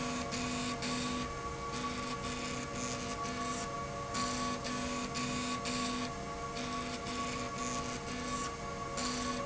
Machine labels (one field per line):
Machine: slide rail